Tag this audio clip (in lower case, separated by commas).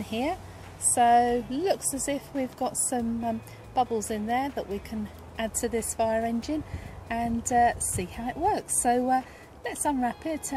speech